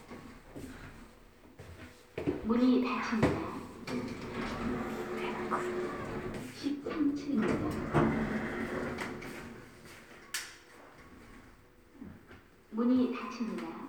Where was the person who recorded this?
in an elevator